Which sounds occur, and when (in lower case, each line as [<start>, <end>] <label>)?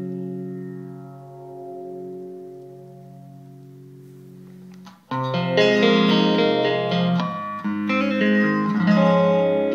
[0.00, 4.94] effects unit
[0.00, 4.94] music
[0.00, 9.74] mechanisms
[4.66, 4.91] generic impact sounds
[5.08, 9.74] effects unit
[5.08, 9.74] music